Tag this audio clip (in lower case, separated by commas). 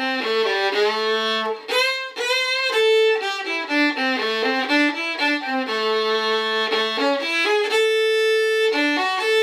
music, musical instrument, fiddle